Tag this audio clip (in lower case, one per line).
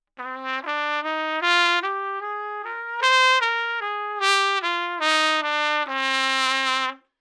brass instrument
trumpet
music
musical instrument